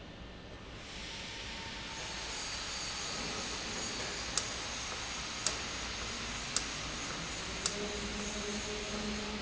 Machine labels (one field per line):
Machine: valve